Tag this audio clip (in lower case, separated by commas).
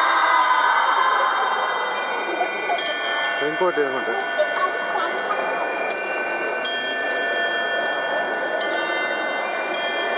tick-tock, speech